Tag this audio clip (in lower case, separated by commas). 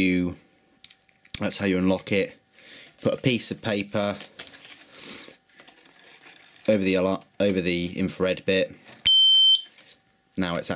inside a small room, speech